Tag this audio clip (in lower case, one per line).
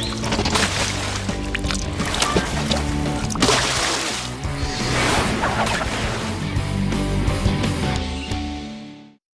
slosh
water
music